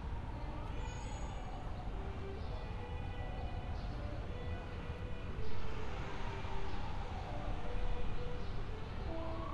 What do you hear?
engine of unclear size, siren, music from an unclear source